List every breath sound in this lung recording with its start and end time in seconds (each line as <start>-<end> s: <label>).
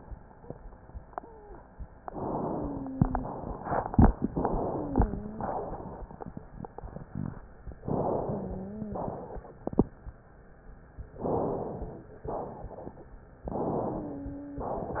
1.12-1.59 s: wheeze
2.07-2.93 s: inhalation
2.49-3.31 s: wheeze
2.93-4.24 s: exhalation
4.28-5.16 s: inhalation
4.70-5.52 s: wheeze
5.32-6.34 s: exhalation
7.87-8.85 s: inhalation
8.23-9.22 s: wheeze
8.90-9.88 s: exhalation
11.24-12.23 s: inhalation
12.25-13.23 s: exhalation
13.45-14.39 s: inhalation
13.83-14.80 s: wheeze
14.64-15.00 s: exhalation